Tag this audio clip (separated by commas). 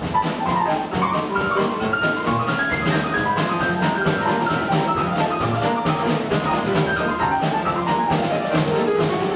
Piano, Jazz, Music, Keyboard (musical), Musical instrument